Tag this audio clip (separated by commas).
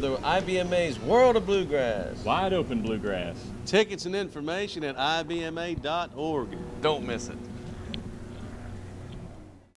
Speech